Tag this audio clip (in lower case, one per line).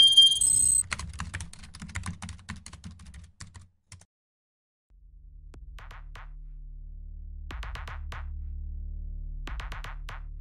computer keyboard